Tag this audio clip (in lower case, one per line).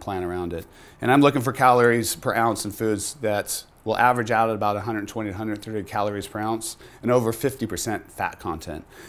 speech